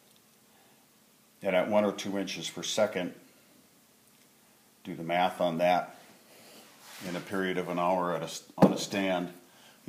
Male speaking about one or two inches